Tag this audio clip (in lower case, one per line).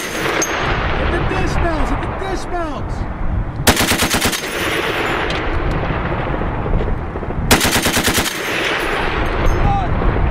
machine gun shooting